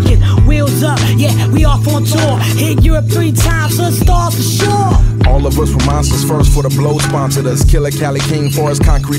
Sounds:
rapping, music

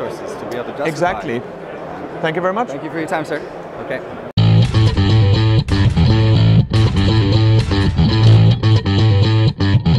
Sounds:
speech, music, inside a public space, distortion

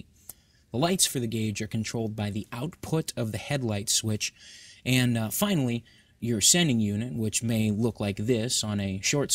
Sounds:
speech

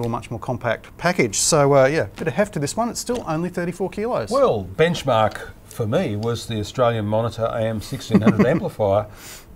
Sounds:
speech

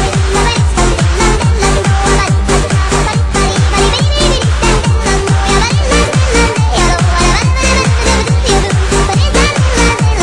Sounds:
music

